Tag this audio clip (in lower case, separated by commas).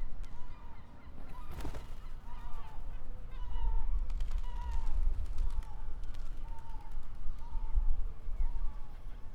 bird, gull, wild animals, animal